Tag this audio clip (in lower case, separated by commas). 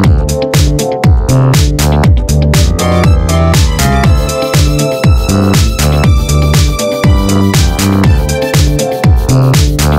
music, house music, dance music, techno, electronic music